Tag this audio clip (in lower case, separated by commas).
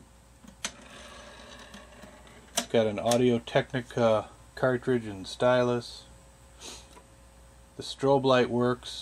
speech